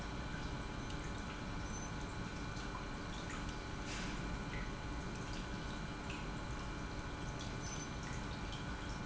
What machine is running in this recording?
pump